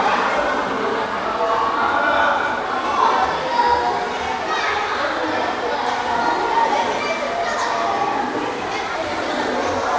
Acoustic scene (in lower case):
crowded indoor space